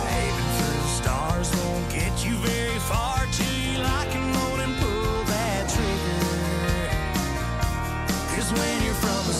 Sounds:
music

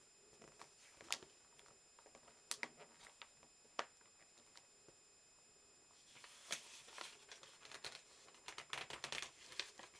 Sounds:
crackle

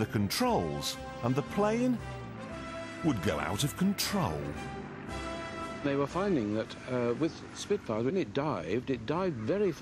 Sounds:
music, speech

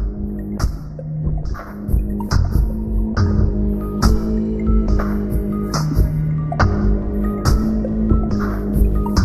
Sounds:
soundtrack music, music

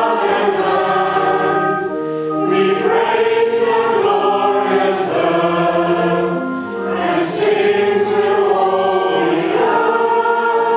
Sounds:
inside a large room or hall, music, singing, choir

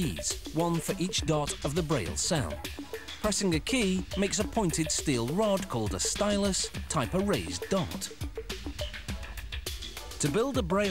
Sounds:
music, speech

